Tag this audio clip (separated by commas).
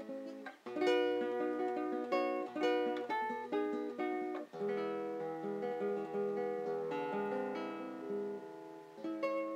Plucked string instrument, Guitar, Musical instrument, Acoustic guitar, Music